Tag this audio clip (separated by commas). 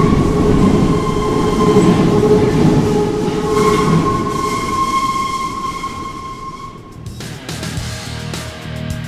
metro